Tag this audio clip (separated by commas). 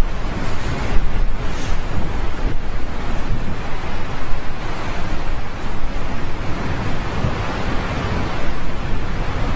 Eruption